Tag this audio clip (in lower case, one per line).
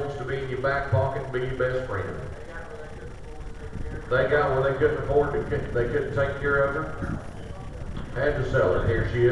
speech